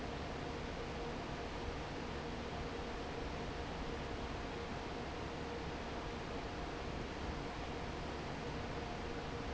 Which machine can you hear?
fan